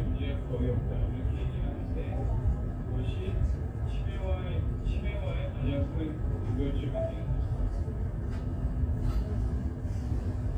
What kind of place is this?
crowded indoor space